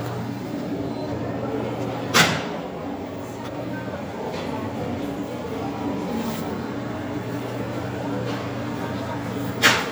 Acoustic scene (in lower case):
subway station